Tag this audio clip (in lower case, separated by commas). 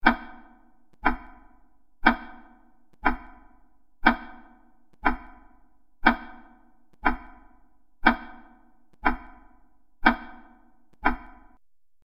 clock, tick-tock, mechanisms